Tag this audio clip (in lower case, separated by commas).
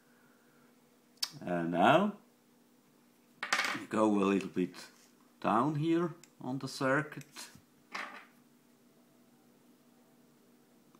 speech